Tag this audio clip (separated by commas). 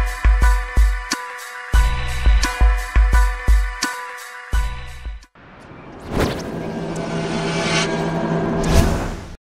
Music